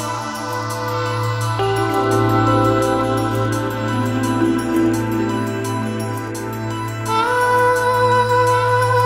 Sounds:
New-age music

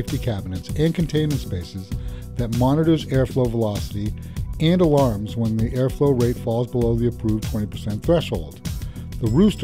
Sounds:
Buzzer, Speech, Music

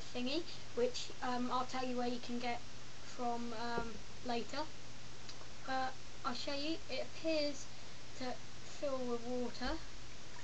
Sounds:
Speech

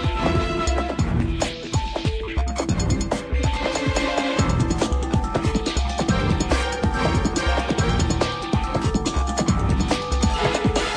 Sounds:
Music

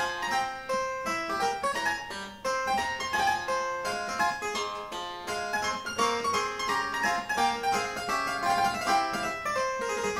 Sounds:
playing harpsichord

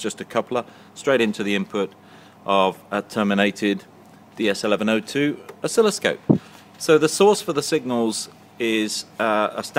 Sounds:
Speech

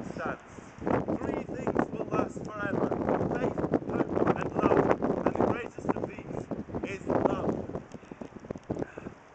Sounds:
Speech, outside, rural or natural

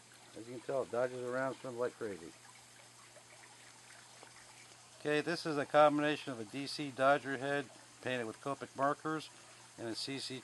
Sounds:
Speech

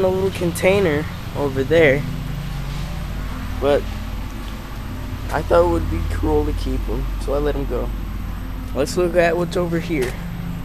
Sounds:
Speech

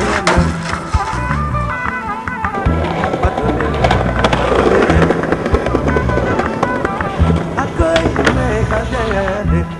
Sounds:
Skateboard

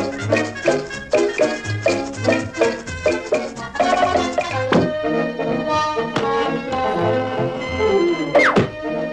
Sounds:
Music

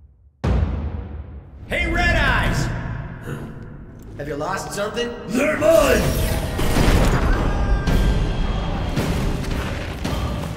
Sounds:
Speech, Music

